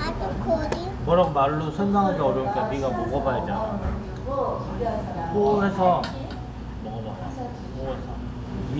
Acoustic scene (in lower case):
restaurant